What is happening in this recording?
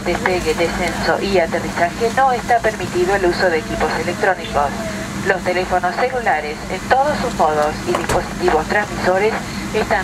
Female speaking on radio with a door closing in background